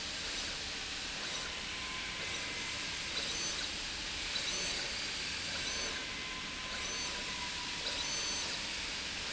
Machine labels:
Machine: slide rail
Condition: abnormal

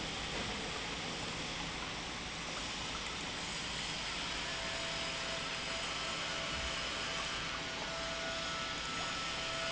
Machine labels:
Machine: pump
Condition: normal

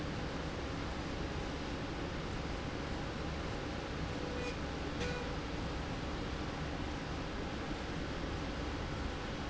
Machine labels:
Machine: slide rail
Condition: normal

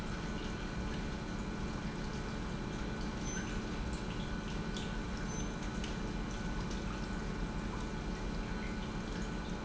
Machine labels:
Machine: pump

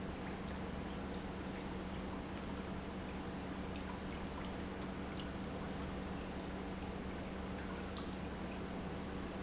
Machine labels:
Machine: pump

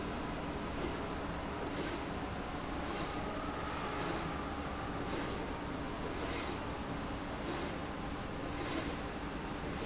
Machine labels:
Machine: slide rail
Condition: abnormal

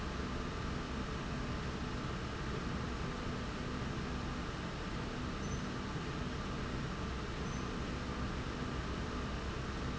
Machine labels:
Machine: slide rail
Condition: normal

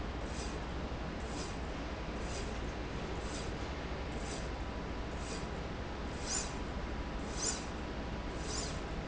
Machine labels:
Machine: slide rail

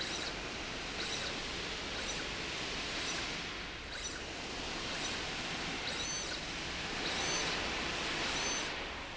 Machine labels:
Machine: slide rail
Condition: abnormal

